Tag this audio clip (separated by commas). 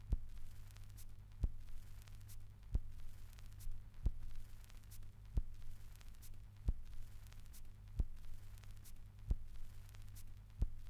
Crackle